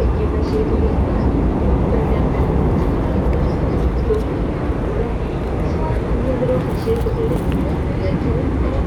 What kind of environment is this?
subway train